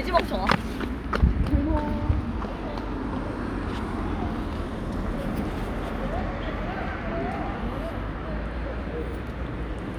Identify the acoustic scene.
street